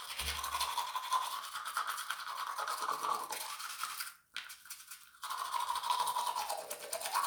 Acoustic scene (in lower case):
restroom